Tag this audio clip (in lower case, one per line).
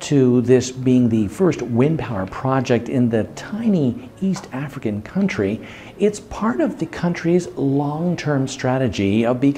speech